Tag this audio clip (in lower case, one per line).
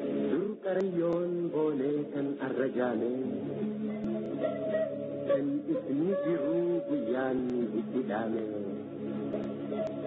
music